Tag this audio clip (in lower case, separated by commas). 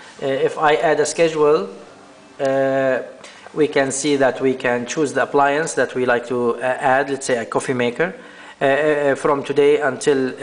speech, music